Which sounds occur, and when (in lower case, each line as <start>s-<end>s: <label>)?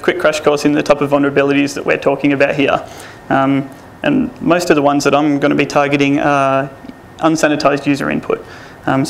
0.0s-2.8s: male speech
0.0s-9.0s: background noise
3.3s-3.7s: male speech
4.0s-6.7s: male speech
7.1s-8.5s: male speech